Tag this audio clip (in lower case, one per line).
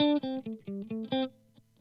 plucked string instrument
guitar
electric guitar
music
musical instrument